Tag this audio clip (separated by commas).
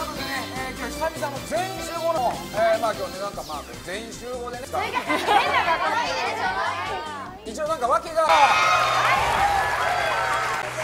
Speech, Music of Asia, Music